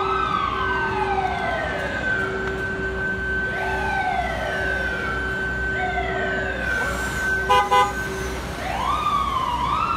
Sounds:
ambulance siren, ambulance (siren)

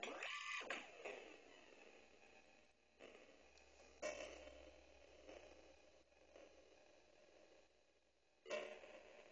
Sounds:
tick-tock

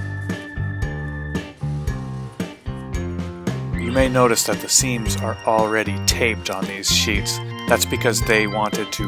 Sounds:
music, speech

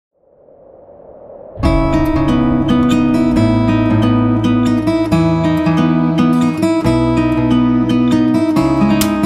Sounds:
guitar, musical instrument, plucked string instrument, music

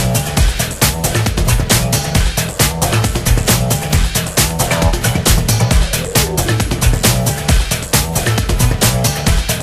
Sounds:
music

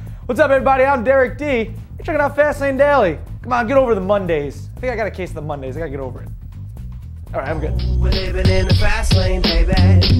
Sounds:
music, speech

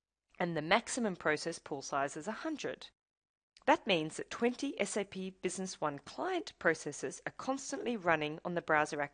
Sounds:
monologue

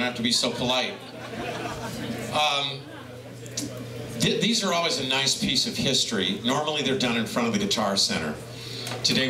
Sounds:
speech

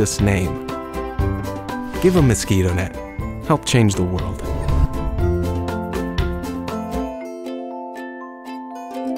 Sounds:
speech, music

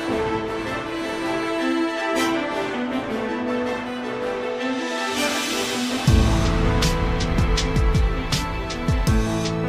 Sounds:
music

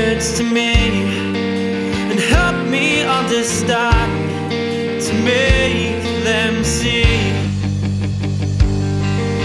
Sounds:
theme music, music

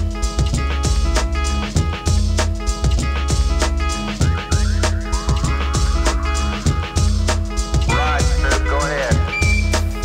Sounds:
speech, music

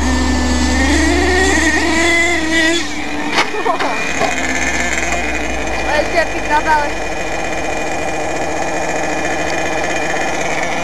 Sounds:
car, speech

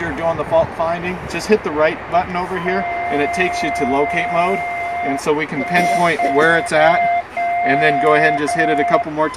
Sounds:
outside, urban or man-made, speech

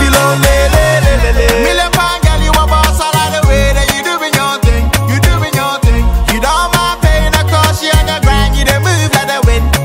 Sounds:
afrobeat

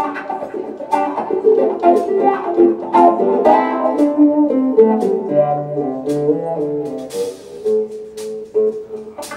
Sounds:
inside a public space, musical instrument, orchestra, music

